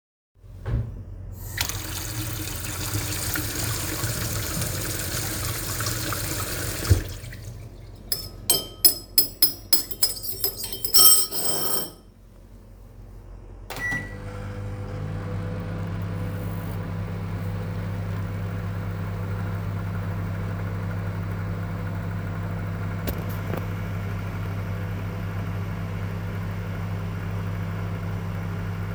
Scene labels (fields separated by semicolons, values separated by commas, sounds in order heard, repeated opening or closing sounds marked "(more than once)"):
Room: kitchen; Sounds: running water, cutlery and dishes, microwave